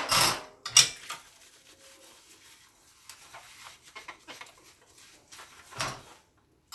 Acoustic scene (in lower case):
kitchen